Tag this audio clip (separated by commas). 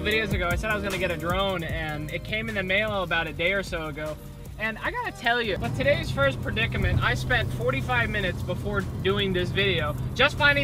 Music, Motor vehicle (road), Car, Vehicle, Speech